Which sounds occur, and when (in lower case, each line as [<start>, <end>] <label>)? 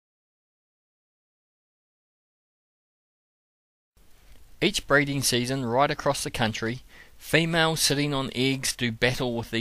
[3.95, 9.60] background noise
[4.54, 6.72] male speech
[6.83, 7.08] breathing
[7.18, 9.60] male speech